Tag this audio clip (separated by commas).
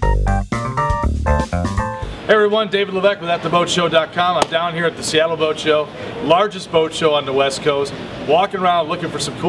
Speech, Music